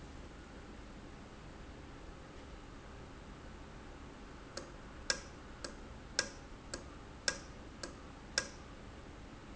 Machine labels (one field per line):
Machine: valve